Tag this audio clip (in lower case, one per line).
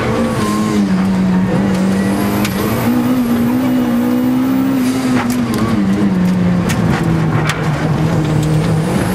vehicle
car passing by
car